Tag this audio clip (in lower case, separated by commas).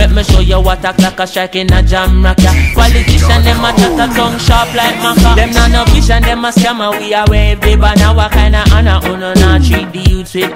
afrobeat, reggae, music